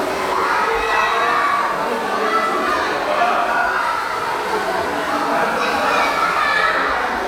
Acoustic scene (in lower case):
crowded indoor space